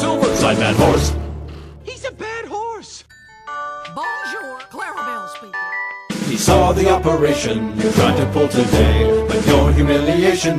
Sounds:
music
speech

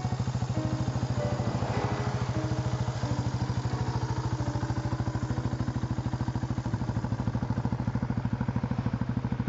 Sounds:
music

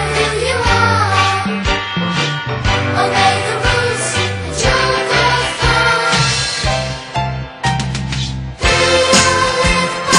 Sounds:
music

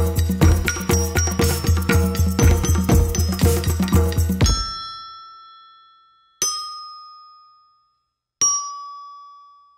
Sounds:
playing glockenspiel

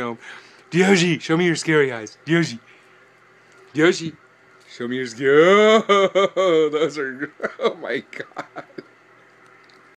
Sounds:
speech

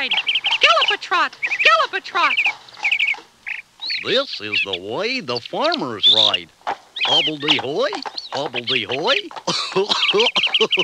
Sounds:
speech

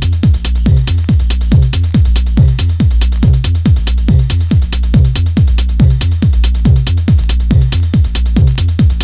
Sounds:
music

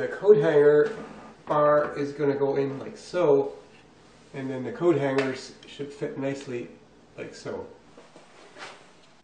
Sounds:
speech

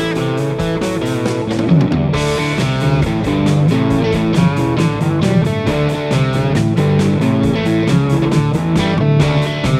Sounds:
music

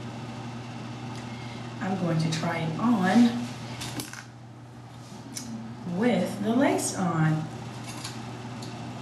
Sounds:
inside a small room
speech

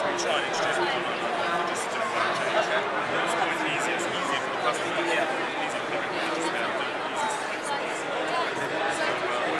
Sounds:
speech

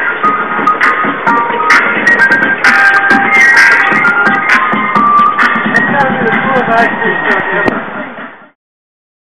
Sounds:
truck
music
speech
vehicle

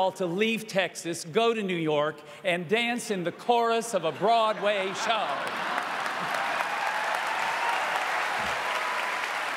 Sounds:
male speech
narration
speech

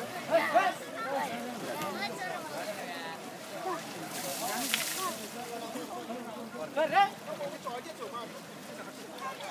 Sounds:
speech

